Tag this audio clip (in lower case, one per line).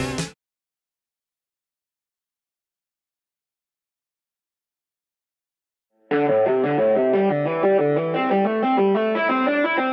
tapping guitar